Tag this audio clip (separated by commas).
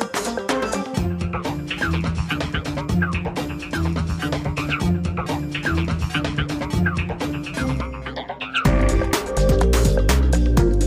Music